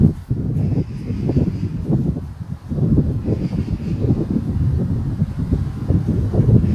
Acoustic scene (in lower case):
park